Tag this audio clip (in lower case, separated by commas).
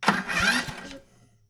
engine, engine starting